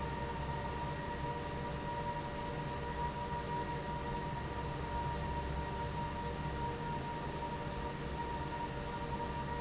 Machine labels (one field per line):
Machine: fan